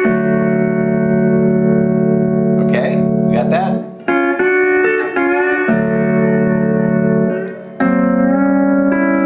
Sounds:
steel guitar
speech
music

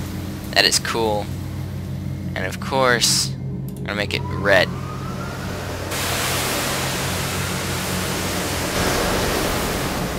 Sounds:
pink noise
speech

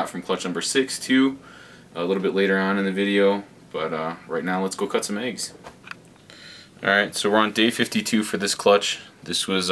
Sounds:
inside a small room
speech

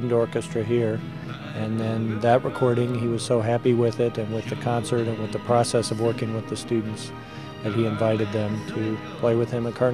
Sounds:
speech
music
orchestra

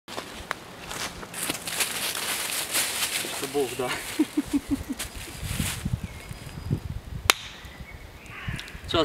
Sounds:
speech

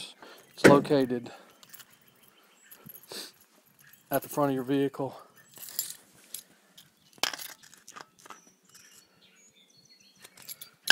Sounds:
speech

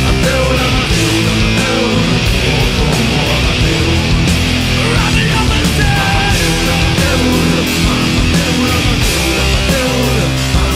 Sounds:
singing
music
punk rock

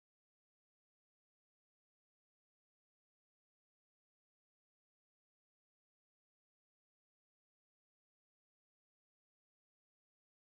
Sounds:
music

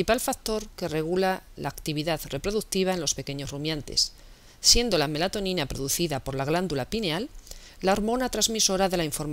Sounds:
speech

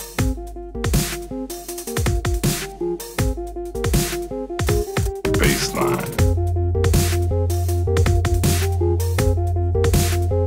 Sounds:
music

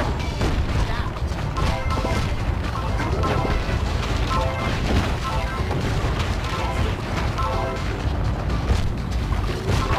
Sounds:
smash
whack

